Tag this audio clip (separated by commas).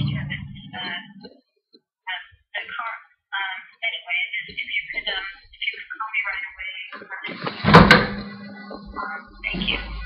Speech, inside a small room